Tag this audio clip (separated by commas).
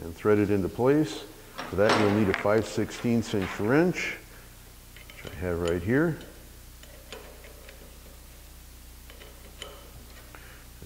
Speech, inside a small room